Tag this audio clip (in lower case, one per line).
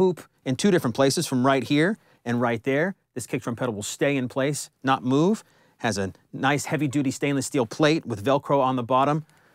speech